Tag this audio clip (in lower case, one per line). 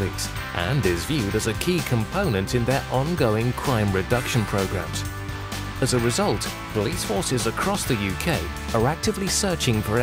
music
speech